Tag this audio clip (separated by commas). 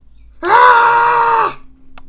Human voice, Shout